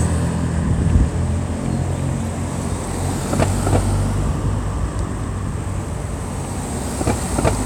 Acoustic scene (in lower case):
street